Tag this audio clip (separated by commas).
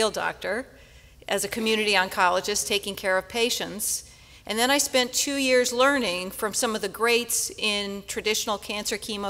Speech